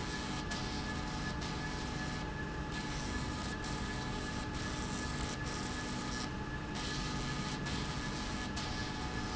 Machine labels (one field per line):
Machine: slide rail